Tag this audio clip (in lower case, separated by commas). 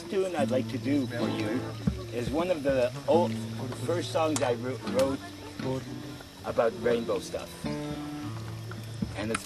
speech, music